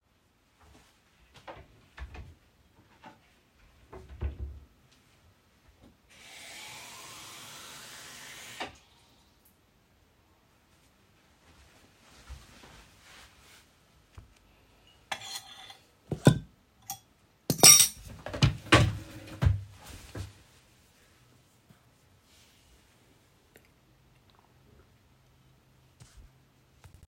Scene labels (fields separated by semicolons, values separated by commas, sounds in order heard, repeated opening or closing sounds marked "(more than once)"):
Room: kitchen; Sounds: wardrobe or drawer, running water, footsteps, cutlery and dishes